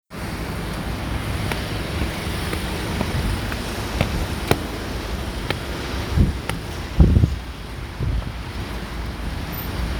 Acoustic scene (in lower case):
residential area